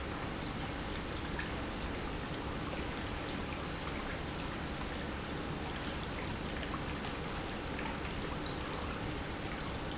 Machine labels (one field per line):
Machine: pump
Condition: normal